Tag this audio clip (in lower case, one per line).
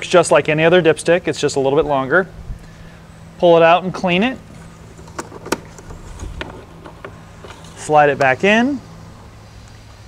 speech